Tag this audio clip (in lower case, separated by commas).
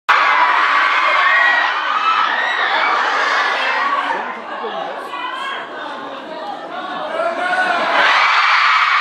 speech, inside a large room or hall